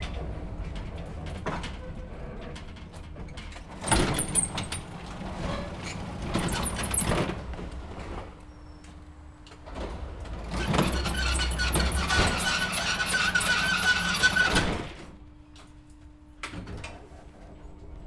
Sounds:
Vehicle

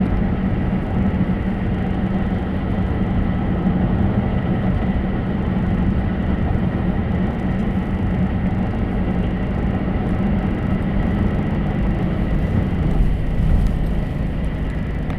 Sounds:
Vehicle, Car, Motor vehicle (road)

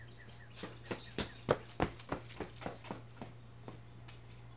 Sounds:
Run

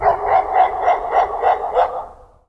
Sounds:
Domestic animals, Animal, Dog, Bark

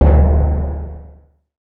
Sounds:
Drum, Percussion, Music, Musical instrument

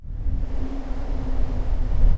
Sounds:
Wind

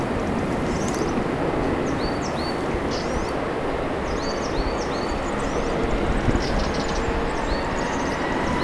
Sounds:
Animal, bird call, Bird, Wild animals

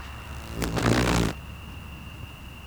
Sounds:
Animal, Wild animals, Insect

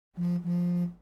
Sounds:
Alarm, Telephone

